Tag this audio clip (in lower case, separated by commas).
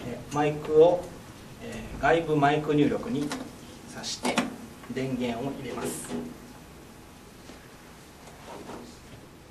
speech